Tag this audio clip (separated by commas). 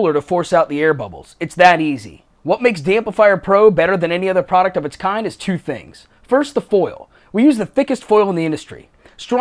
Speech